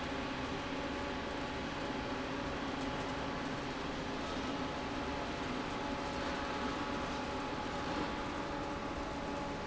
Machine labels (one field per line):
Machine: fan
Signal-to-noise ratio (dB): -6 dB